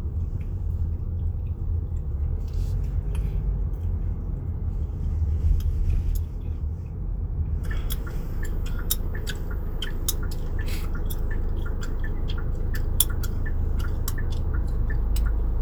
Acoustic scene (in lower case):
car